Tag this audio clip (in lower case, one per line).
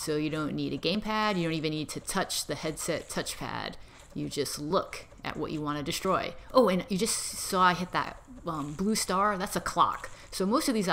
speech